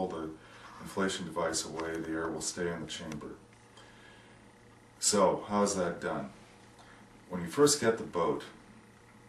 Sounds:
Speech

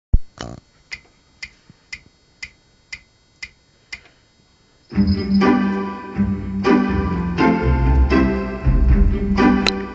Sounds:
Keyboard (musical), Music, Electric piano, Musical instrument, Piano, New-age music

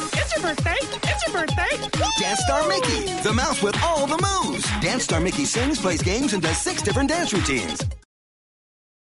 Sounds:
Music, Speech

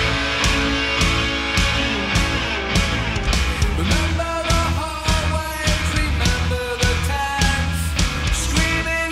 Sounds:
Music

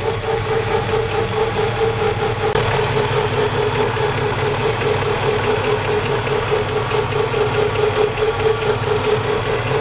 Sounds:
Engine, Vehicle, Idling, Medium engine (mid frequency)

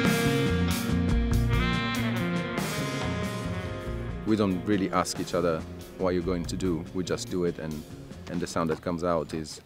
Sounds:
Music, Speech

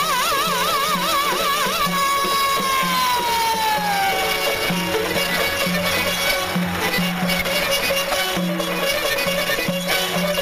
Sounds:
Orchestra, Music, Classical music

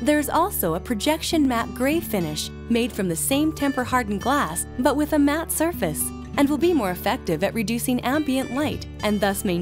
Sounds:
Speech, Music

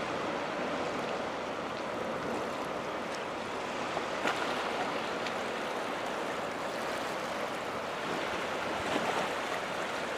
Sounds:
Boat

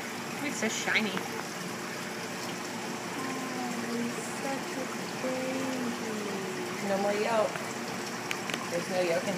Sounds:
Speech

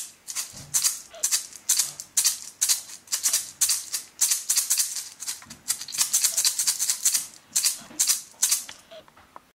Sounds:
Musical instrument, Rattle (instrument), inside a small room, Music

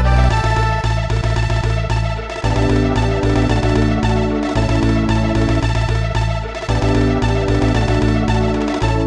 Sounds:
Music

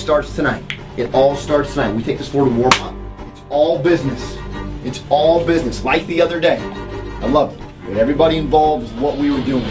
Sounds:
Speech, Music

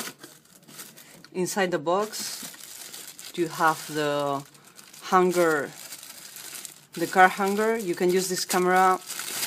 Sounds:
Speech

